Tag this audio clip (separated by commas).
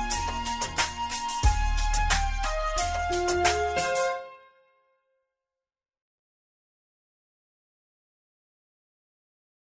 Flute, Music